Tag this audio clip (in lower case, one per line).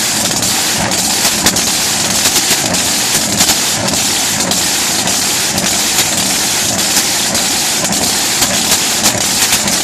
vehicle